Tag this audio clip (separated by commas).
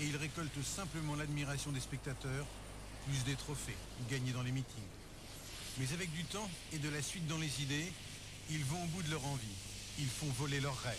Speech